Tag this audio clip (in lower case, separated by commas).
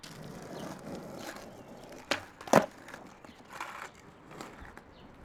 vehicle, skateboard